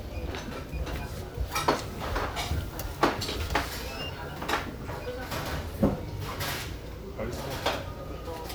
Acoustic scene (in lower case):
restaurant